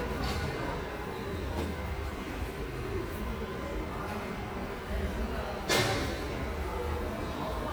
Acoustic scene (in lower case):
subway station